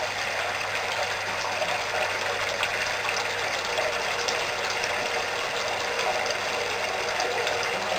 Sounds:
bathtub (filling or washing), home sounds

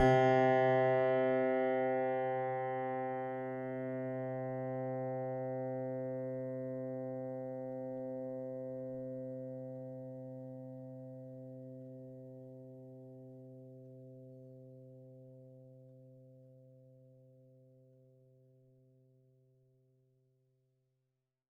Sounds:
piano, music, musical instrument, keyboard (musical)

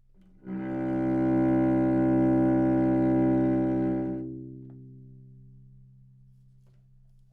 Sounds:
musical instrument, music, bowed string instrument

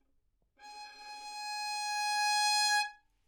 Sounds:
musical instrument, music, bowed string instrument

